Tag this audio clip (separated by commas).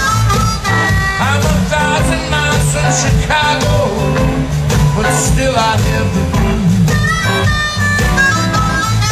Singing, Blues, Song, Music